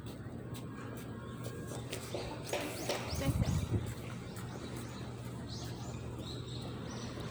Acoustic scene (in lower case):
residential area